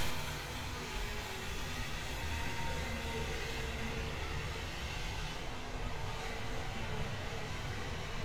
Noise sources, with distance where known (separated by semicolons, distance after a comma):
unidentified impact machinery